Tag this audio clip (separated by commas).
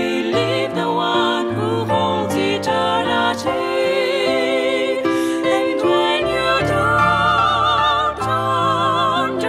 Christmas music, Music, Singing